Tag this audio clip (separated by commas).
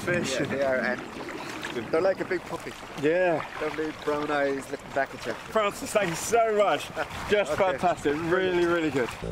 Music, Speech